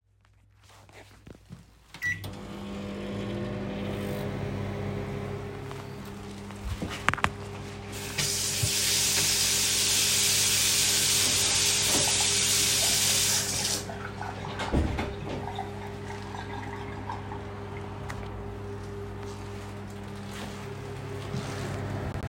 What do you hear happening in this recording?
I turned on the microwave and let it run. While the microwave was operating, I opened the water tap and washed a spoon. The sounds of the running microwave and running water overlapped for several seconds.